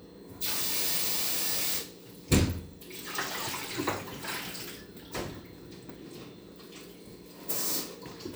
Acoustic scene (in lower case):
kitchen